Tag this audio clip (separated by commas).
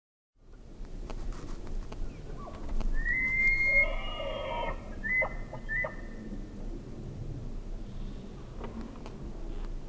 elk bugling